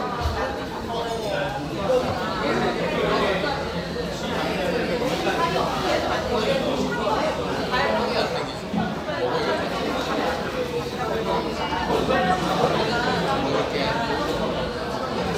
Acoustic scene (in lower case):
crowded indoor space